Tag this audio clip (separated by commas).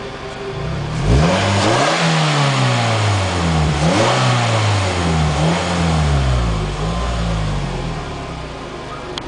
revving, Vehicle